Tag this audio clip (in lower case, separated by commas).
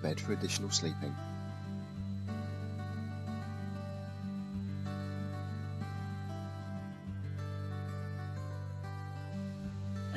music, speech